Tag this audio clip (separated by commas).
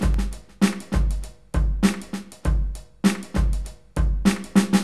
Percussion, Drum kit, Musical instrument, Music